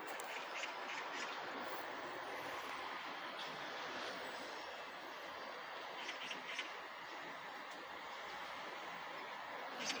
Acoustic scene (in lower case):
park